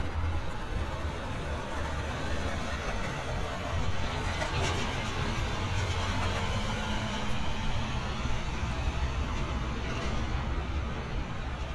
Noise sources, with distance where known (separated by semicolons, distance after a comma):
large-sounding engine